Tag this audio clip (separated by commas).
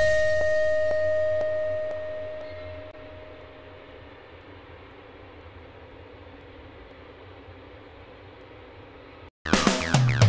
Music